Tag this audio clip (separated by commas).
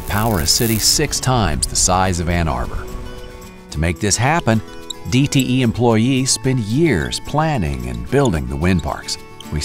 Music, Speech